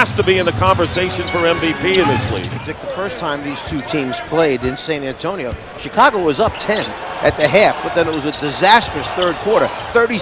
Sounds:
Basketball bounce

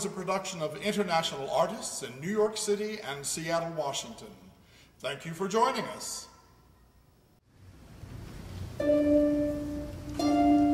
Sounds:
Music, Speech

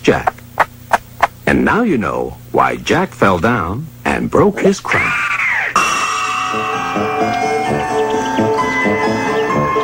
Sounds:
Speech, Music

